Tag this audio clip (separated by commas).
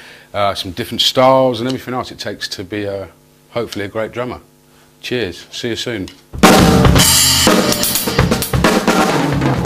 Drum, Music, Bass drum, Drum kit, Musical instrument, Speech